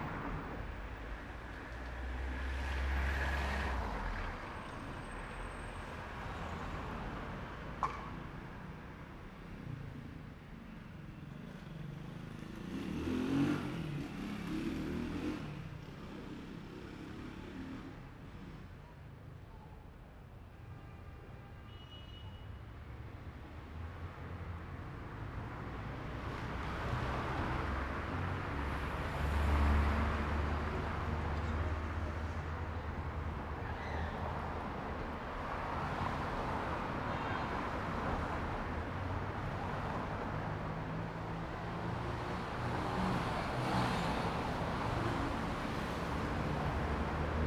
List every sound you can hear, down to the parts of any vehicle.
car, motorcycle, bus, car wheels rolling, car engine accelerating, motorcycle engine accelerating, bus engine accelerating, unclassified sound